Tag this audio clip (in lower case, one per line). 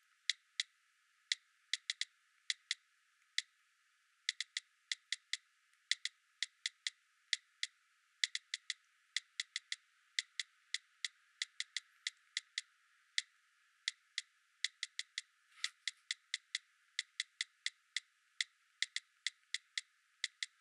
typing
domestic sounds